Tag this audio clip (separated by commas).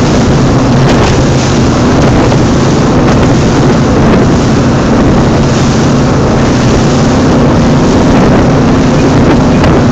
Vehicle, Boat, speedboat acceleration, Motorboat